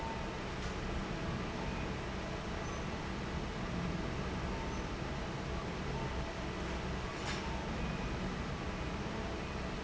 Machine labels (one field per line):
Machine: fan